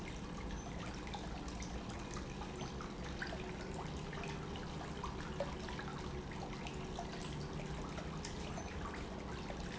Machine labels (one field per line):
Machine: pump